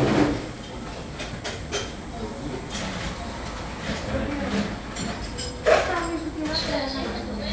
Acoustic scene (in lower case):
cafe